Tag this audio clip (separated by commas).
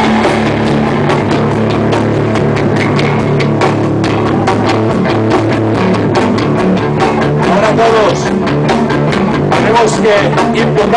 Rock music, Speech, Music